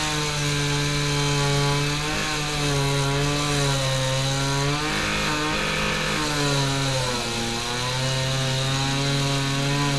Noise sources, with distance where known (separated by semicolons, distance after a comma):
unidentified powered saw, near